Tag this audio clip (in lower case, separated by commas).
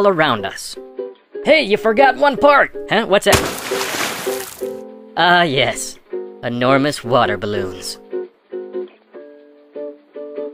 water